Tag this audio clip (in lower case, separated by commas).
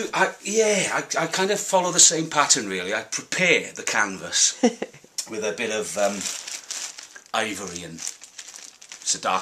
speech